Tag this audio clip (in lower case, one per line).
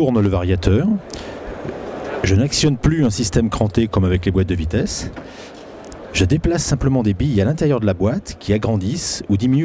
speech